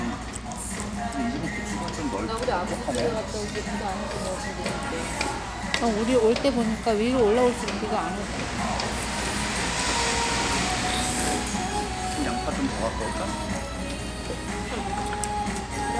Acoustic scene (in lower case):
restaurant